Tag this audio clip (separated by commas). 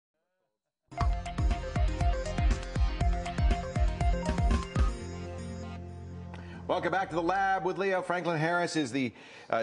Music, Speech